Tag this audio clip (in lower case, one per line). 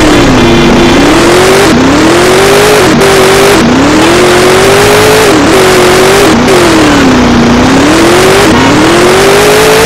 car